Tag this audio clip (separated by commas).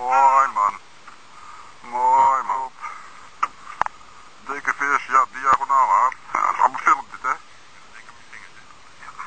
Speech